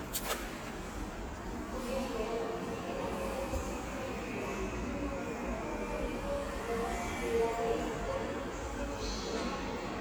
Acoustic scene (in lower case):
subway station